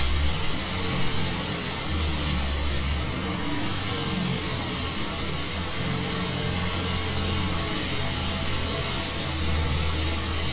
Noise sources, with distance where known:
engine of unclear size, near

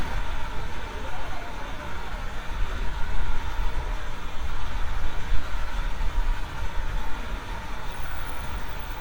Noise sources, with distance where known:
large-sounding engine, near

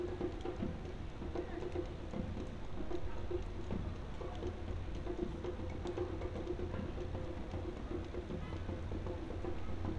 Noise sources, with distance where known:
music from an unclear source

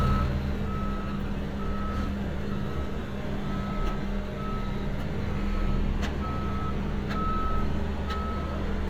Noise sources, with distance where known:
reverse beeper

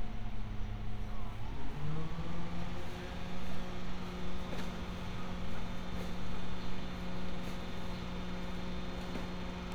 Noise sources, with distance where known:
unidentified powered saw, far
unidentified human voice, far

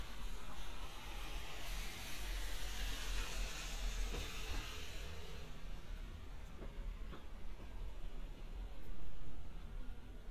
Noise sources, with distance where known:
background noise

